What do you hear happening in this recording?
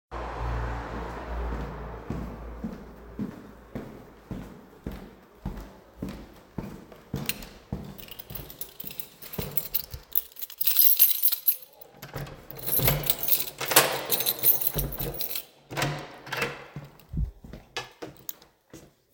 The device is carried by hand during the recording. Footsteps are heard first, then keys are taken out and the door is opened. Background street noise from passing cars is audible throughout the scene.